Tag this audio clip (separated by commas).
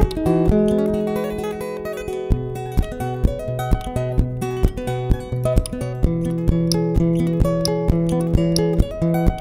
Music